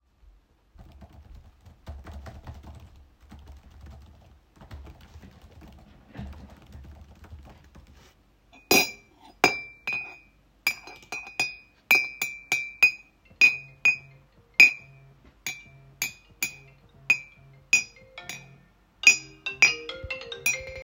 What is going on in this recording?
I was typing a text on laptop keyboard. Then I stirred the tea in a mug with a spoon, while my phone started ringing